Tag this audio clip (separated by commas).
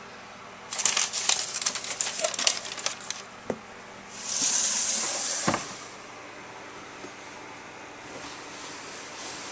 Snake, Hiss